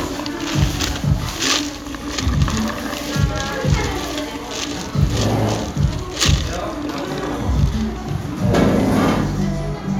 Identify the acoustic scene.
cafe